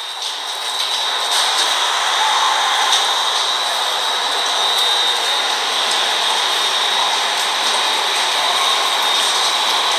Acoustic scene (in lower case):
subway station